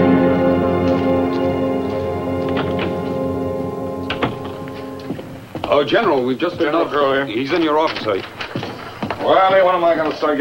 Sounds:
speech, music

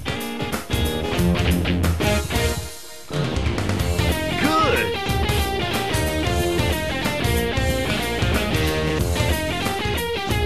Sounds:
music, guitar, musical instrument, speech, plucked string instrument, electric guitar

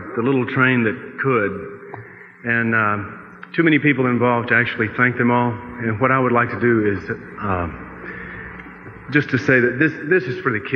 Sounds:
speech

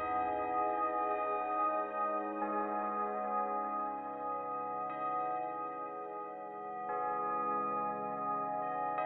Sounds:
ambient music

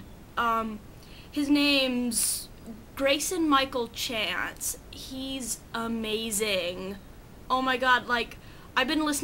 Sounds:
speech

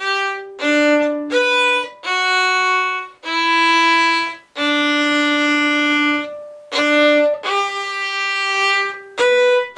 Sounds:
fiddle, musical instrument, music

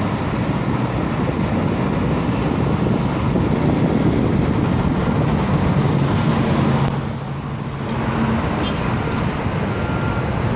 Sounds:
motorboat

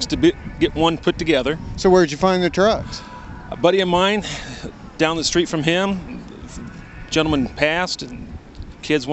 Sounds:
music, speech

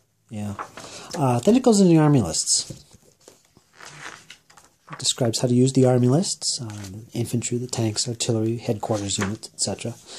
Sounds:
speech, inside a small room

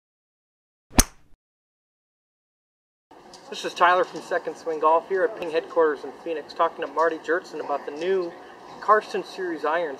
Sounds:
speech

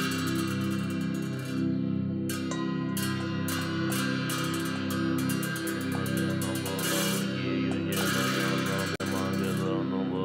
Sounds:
music

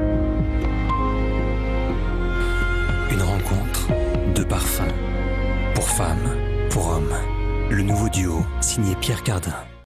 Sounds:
music, speech

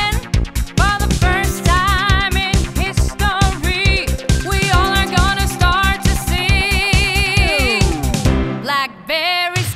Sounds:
music, exciting music

